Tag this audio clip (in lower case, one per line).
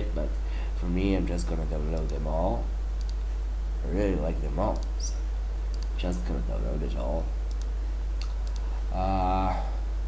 speech